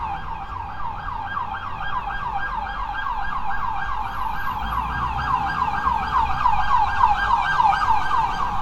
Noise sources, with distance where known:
siren, near

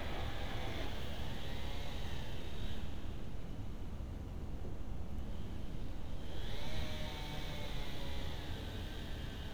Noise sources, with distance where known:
background noise

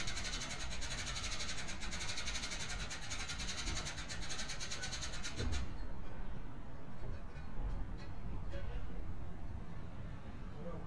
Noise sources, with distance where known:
unidentified impact machinery

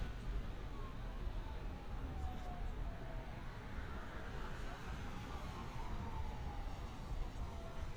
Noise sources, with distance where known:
siren, far

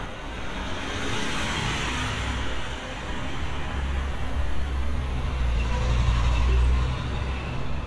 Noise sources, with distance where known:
engine of unclear size, near

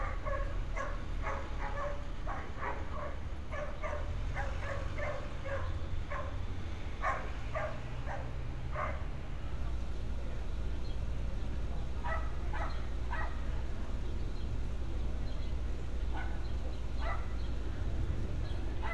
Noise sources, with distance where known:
dog barking or whining

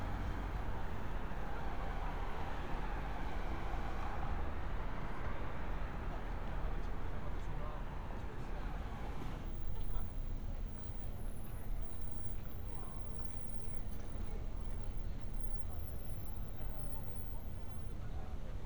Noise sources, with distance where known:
engine of unclear size; person or small group talking

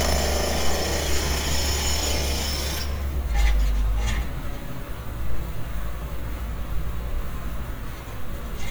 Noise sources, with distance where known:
unidentified impact machinery, near

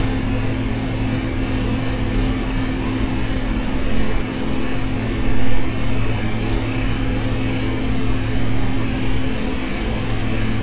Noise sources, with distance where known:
engine of unclear size, near

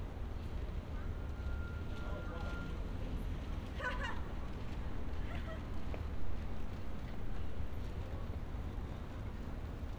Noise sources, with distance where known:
person or small group talking, far; unidentified human voice

